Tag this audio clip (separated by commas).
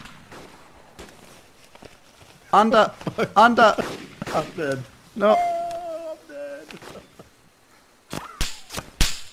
Speech